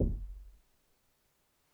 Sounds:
knock, door, wood, domestic sounds

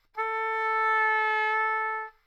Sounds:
woodwind instrument, music, musical instrument

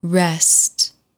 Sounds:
female speech, speech, human voice

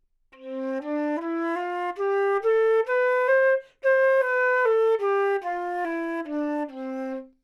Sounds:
music, woodwind instrument, musical instrument

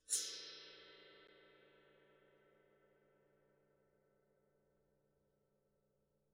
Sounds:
percussion, musical instrument, music, gong

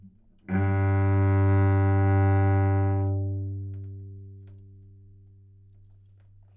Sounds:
music, bowed string instrument, musical instrument

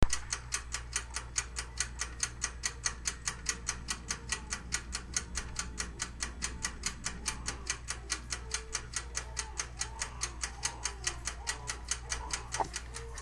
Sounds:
mechanisms, clock, tick-tock

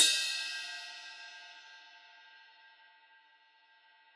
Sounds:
percussion, music, cymbal, musical instrument, crash cymbal

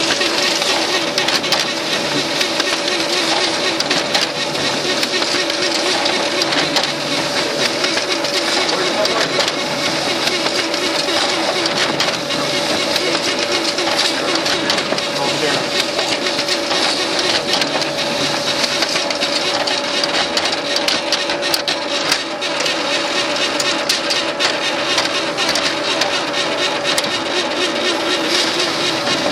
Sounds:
printer, mechanisms

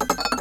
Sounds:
home sounds, dishes, pots and pans

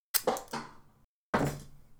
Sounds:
thump

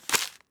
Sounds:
crumpling, crushing

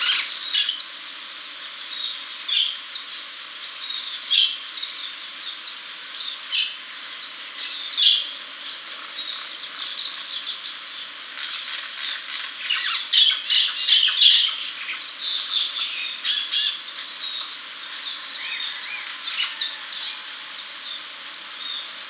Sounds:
bird, animal, wild animals, bird song

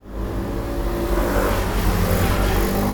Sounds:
motor vehicle (road), motorcycle, vehicle

